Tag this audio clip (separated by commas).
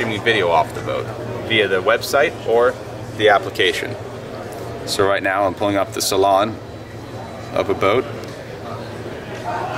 Speech